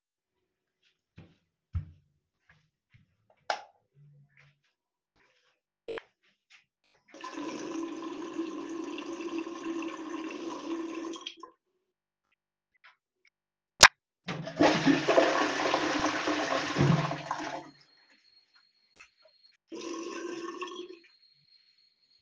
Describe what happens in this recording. Footsteps in the bathroom, a light switch clicks, water runs, and a toilet flushes